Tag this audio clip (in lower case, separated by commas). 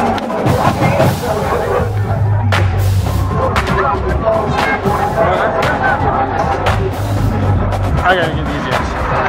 music, speech